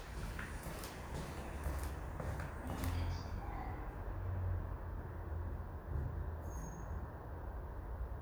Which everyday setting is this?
elevator